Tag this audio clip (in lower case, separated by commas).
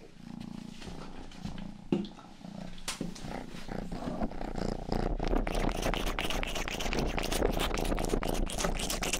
cat purring